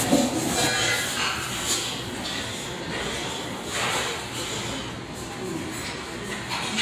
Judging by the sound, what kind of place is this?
restaurant